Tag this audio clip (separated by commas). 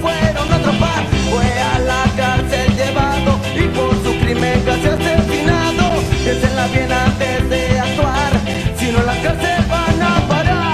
Ska, Music